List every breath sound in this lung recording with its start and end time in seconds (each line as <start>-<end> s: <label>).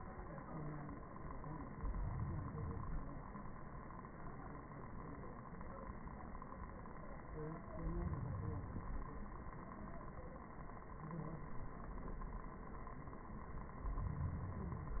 1.70-3.20 s: inhalation
7.73-9.23 s: inhalation
13.78-15.00 s: inhalation